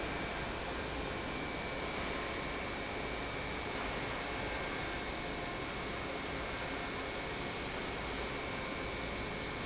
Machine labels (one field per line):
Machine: pump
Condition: normal